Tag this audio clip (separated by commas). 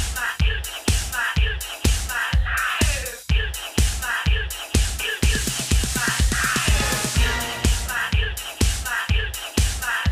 Music